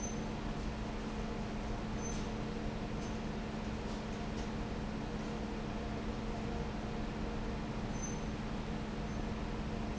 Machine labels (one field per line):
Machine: fan